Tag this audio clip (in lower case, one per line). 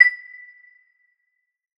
chime
bell